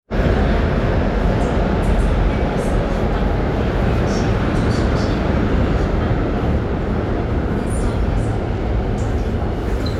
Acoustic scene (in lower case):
subway train